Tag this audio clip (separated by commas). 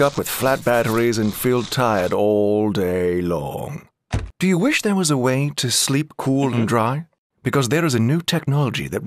Speech